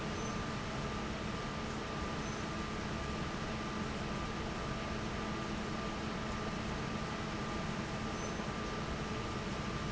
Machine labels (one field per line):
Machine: fan